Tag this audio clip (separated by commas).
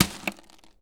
Crushing